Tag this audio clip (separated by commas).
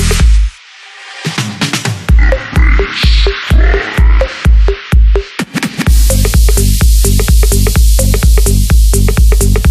Dance music